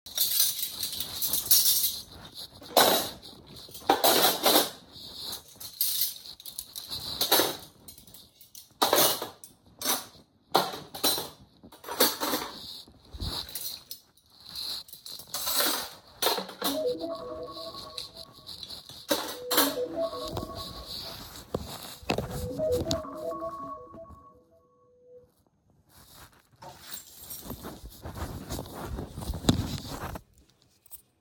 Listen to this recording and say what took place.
I was unloading the dishwasher, then my phone rang, I grabbed the keys and left the room